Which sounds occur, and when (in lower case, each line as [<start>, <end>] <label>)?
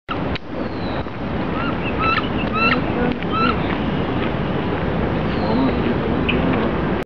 [0.05, 7.04] background noise
[0.31, 0.37] generic impact sounds
[0.58, 1.00] bird vocalization
[1.51, 3.54] duck
[3.00, 3.24] generic impact sounds
[3.67, 3.75] generic impact sounds
[4.16, 4.29] generic impact sounds
[4.72, 4.79] tick
[5.28, 5.83] bird vocalization
[5.37, 6.74] duck
[6.23, 6.39] bird vocalization
[6.49, 6.66] bird vocalization